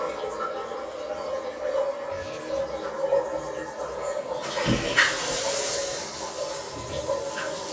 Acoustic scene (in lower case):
restroom